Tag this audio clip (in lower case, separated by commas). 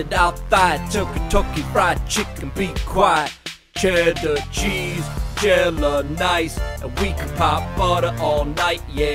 music, rapping